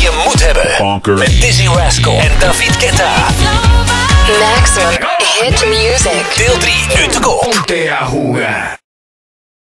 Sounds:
music, speech

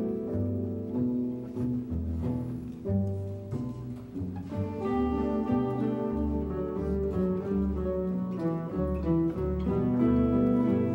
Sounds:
orchestra, musical instrument, guitar, music, double bass

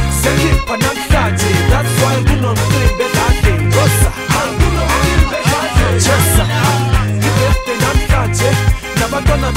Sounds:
music

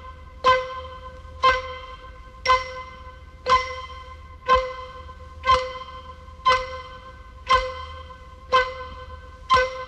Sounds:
tick-tock

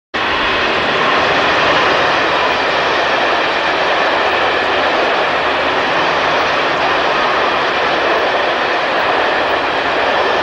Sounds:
train, vehicle, rail transport, outside, urban or man-made

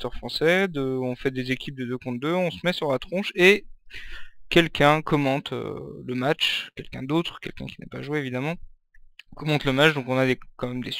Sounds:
speech

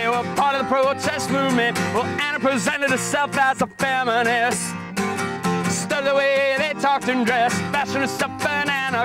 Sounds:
music

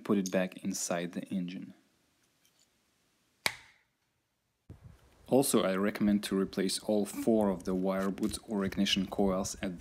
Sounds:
speech

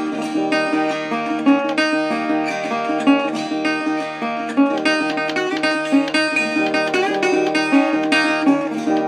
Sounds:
musical instrument, strum, plucked string instrument, guitar, music

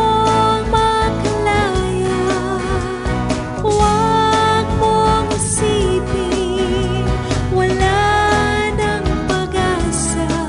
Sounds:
music

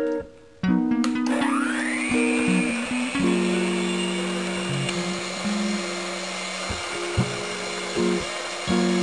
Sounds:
music, inside a small room, blender

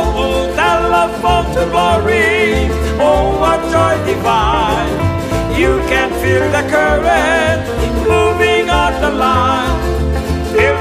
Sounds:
music, christmas music

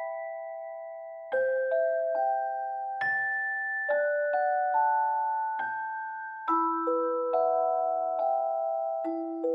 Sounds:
music

